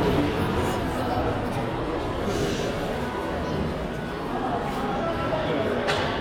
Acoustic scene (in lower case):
crowded indoor space